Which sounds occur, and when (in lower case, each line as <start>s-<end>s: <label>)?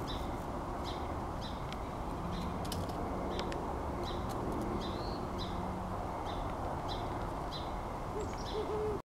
0.0s-9.0s: vehicle
0.0s-9.0s: wind
0.0s-0.2s: tweet
0.8s-1.0s: tweet
1.4s-1.6s: tweet
1.7s-1.7s: tick
2.1s-2.6s: tweet
2.6s-2.9s: generic impact sounds
3.3s-3.5s: tweet
3.4s-3.4s: tick
3.5s-3.5s: tick
4.0s-4.3s: tweet
4.3s-4.3s: generic impact sounds
4.5s-4.6s: generic impact sounds
4.8s-5.2s: tweet
5.3s-5.6s: tweet
6.2s-6.4s: tweet
6.5s-6.5s: tick
6.6s-6.7s: tick
6.8s-7.0s: tweet
7.5s-7.6s: tweet
8.1s-8.3s: hoot
8.1s-8.6s: tweet
8.2s-8.2s: tick
8.3s-8.3s: tick
8.5s-9.0s: hoot